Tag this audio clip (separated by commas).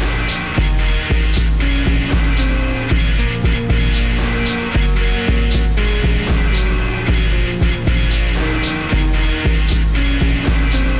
Music, Soundtrack music